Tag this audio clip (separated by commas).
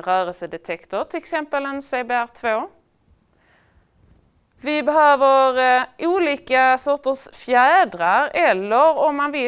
Speech